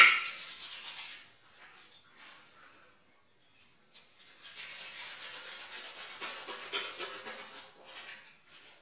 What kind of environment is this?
restroom